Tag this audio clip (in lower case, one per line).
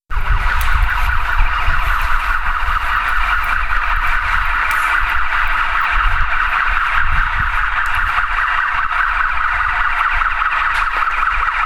alarm